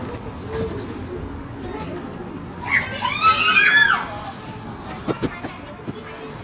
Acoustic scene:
park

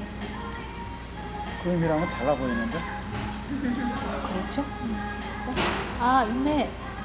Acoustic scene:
restaurant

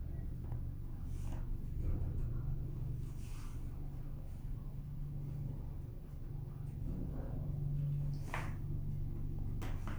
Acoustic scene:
elevator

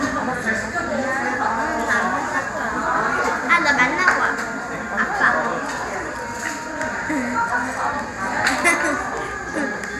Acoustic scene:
cafe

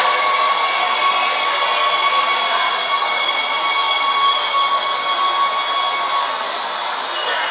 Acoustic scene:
subway train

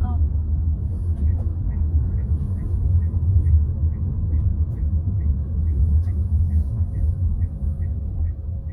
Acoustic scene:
car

